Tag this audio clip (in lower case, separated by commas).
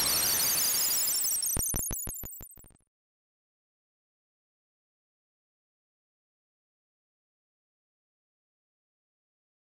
music